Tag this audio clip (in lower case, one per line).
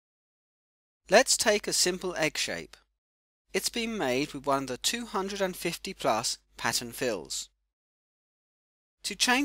speech